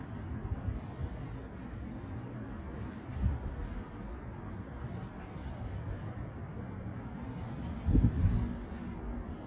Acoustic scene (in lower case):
residential area